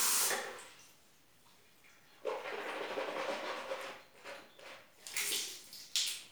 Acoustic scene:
restroom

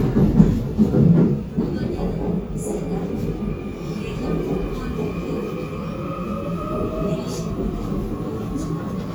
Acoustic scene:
subway train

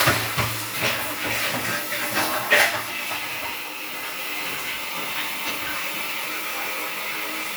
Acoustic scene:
restroom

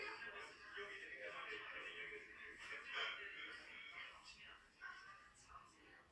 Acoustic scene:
crowded indoor space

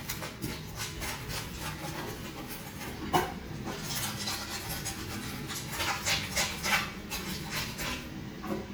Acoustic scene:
restroom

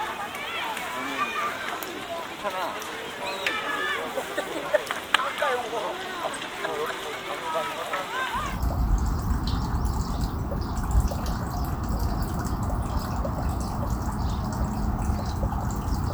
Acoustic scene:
park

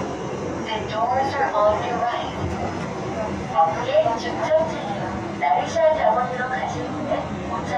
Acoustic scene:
subway train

